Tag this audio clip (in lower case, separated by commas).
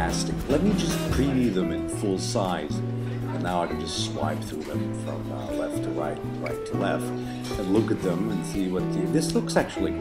music, speech